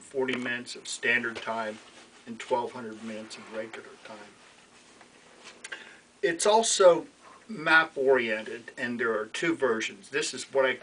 A man is talking with low background noise